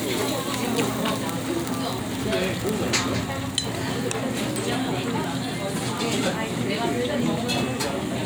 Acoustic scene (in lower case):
crowded indoor space